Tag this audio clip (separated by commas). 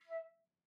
Musical instrument, Wind instrument, Music